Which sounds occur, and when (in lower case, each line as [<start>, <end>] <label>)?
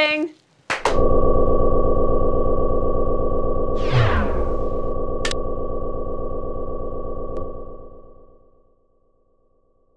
[0.00, 0.38] female speech
[0.63, 0.91] clapping
[0.64, 9.95] mechanisms
[3.74, 4.55] sound effect
[5.10, 5.33] generic impact sounds
[7.30, 7.48] generic impact sounds